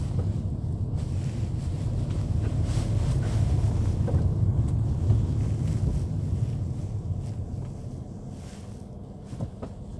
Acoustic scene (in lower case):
car